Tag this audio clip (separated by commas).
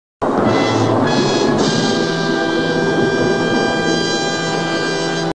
Music